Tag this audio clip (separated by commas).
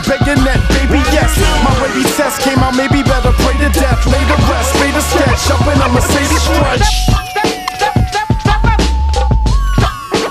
Music, Singing, Hip hop music